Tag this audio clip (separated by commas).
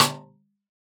Musical instrument, Drum, Snare drum, Percussion, Music